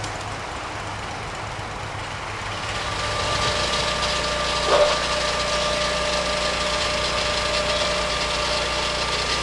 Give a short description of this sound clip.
A whirring machine comes closer and a dog barks